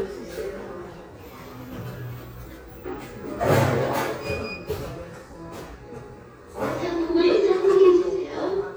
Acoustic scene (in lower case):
cafe